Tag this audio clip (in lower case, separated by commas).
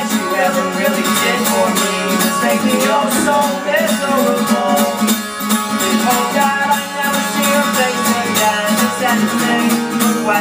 music